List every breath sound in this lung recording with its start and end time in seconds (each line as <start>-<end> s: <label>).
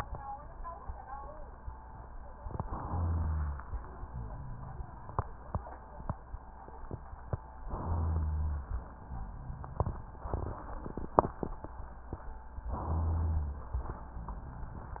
2.40-3.68 s: inhalation
2.90-3.68 s: rhonchi
3.69-6.23 s: exhalation
7.66-8.68 s: inhalation
7.82-8.71 s: rhonchi
12.76-13.62 s: inhalation
12.76-13.62 s: rhonchi